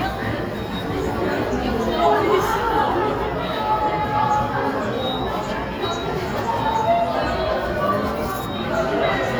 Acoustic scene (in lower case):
subway station